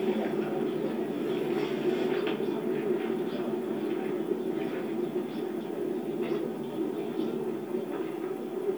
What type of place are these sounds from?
park